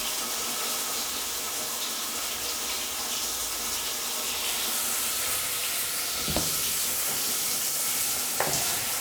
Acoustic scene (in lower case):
restroom